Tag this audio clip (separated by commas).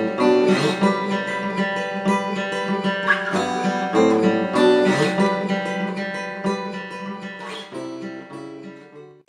Guitar, Acoustic guitar, Strum, Plucked string instrument, Music, Musical instrument